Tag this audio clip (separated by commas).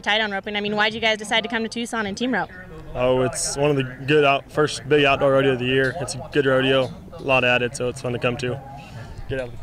Speech